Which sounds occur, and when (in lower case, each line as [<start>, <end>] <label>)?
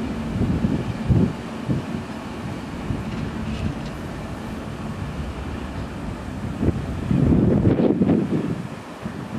[0.00, 1.33] wind noise (microphone)
[0.00, 9.35] train
[1.63, 2.11] wind noise (microphone)
[2.40, 3.97] wind noise (microphone)
[6.50, 9.35] wind noise (microphone)